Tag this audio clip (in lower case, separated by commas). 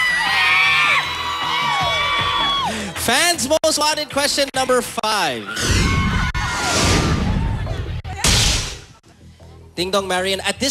speech, music